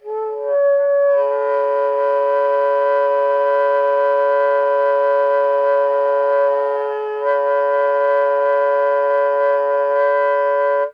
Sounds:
Music, Musical instrument, woodwind instrument

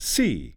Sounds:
Speech, Human voice, man speaking

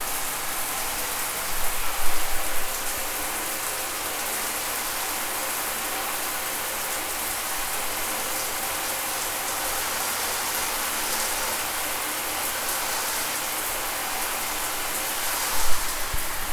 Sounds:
home sounds, Bathtub (filling or washing)

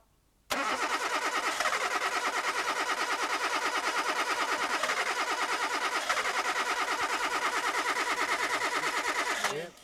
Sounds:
Motor vehicle (road), Car, Engine, Engine starting, Vehicle

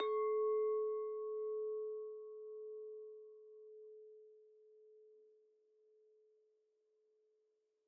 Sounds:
Glass, clink

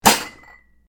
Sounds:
dishes, pots and pans, home sounds

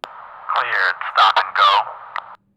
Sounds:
Male speech, Human voice, Speech

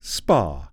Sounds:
Speech, Male speech, Human voice

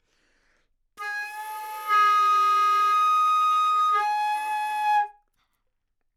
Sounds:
Music, woodwind instrument, Musical instrument

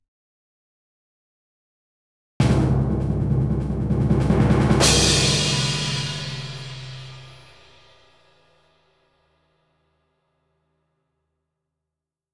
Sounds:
Percussion, Music, Drum, Musical instrument

